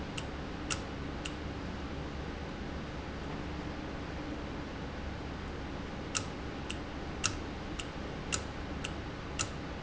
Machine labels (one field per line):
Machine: valve